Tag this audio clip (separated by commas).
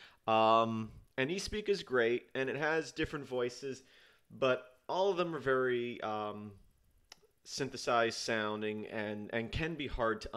Speech